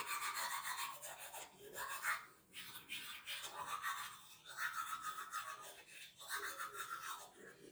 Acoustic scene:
restroom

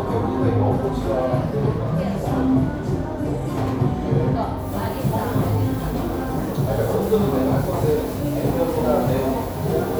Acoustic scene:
cafe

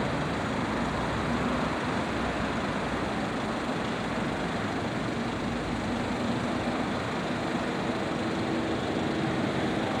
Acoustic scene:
street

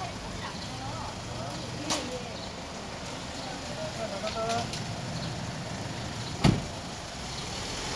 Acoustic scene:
residential area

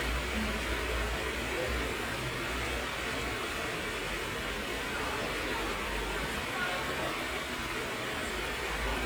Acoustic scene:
park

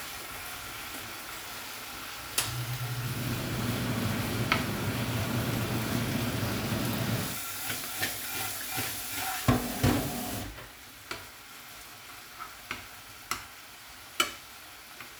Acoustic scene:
kitchen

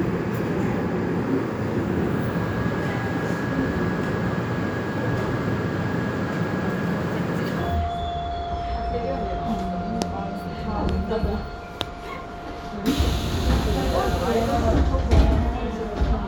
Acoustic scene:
subway train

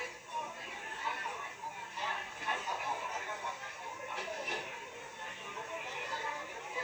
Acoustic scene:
restaurant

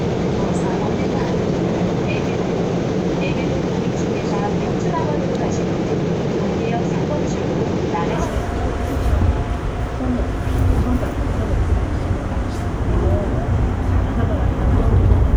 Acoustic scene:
subway train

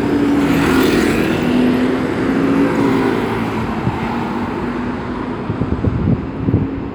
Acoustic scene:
street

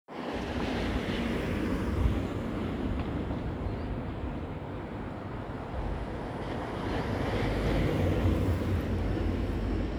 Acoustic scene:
residential area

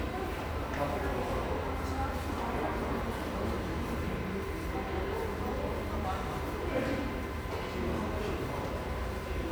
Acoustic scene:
subway station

